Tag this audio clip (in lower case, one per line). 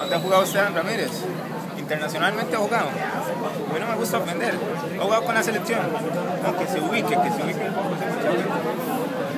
speech